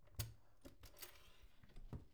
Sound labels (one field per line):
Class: cupboard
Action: closing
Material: wooden